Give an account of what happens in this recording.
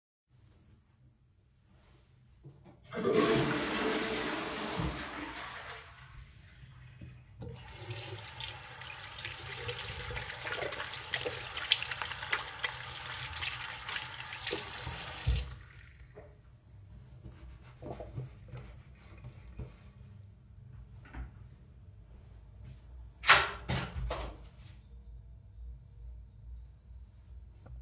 I flushed the toilet then walked over to the sink (footsteps inaudible) and washed my hands. I then dryed off my hands with a towel unlocked the bathroom door and opened it.